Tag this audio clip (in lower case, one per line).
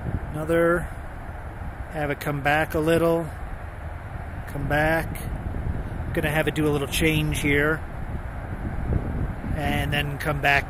wind
wind noise (microphone)